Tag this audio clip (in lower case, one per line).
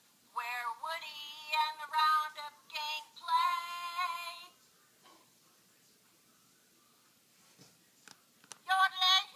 music
singing
yodeling